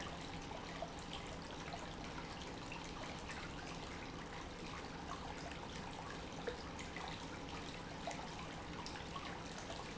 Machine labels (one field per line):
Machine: pump